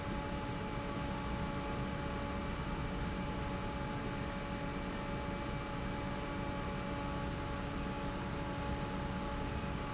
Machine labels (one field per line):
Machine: fan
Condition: normal